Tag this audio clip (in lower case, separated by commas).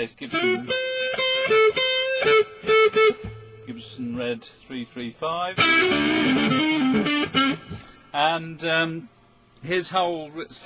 musical instrument, plucked string instrument, speech, electric guitar, music